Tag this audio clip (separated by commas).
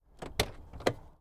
Car, Vehicle, Motor vehicle (road)